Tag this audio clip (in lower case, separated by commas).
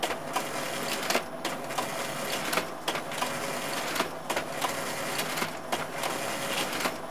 mechanisms